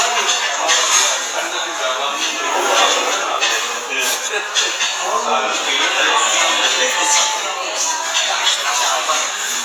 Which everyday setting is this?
restaurant